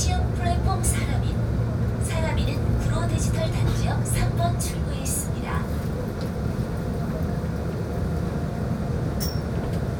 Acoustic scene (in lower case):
subway train